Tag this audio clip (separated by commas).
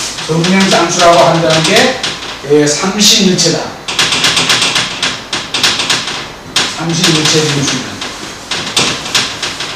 Speech